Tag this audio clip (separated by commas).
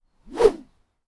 swish